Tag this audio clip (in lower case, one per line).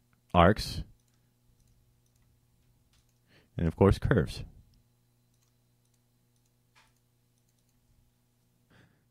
speech